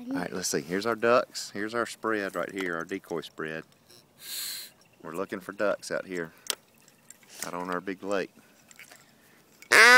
A man speaks followed by duck quacking